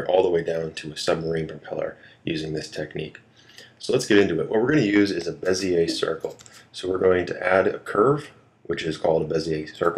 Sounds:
Speech

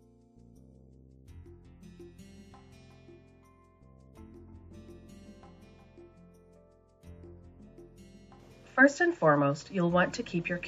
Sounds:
Music, Speech

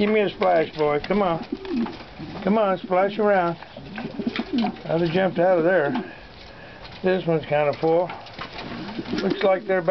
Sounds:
Speech, Water

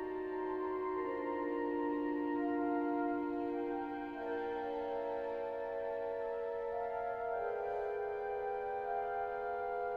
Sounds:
Musical instrument, Music

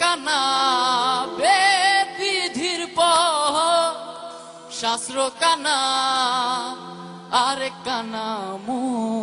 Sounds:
Music, Musical instrument

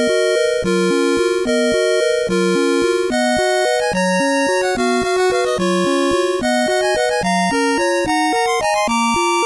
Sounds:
Music

